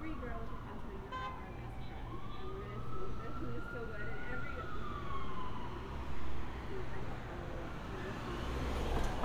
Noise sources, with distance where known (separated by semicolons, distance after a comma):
medium-sounding engine, near; car horn, far; siren, far; person or small group talking, near